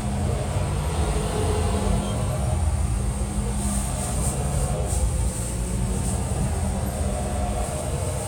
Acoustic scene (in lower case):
bus